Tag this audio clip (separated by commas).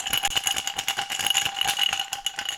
Glass